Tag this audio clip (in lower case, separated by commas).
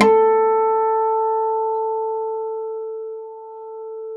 musical instrument, acoustic guitar, guitar, plucked string instrument, music